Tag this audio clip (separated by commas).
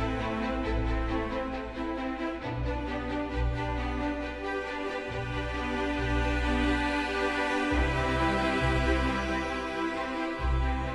Music